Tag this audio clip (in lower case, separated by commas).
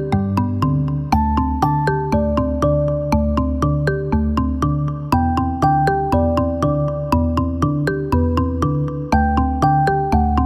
playing vibraphone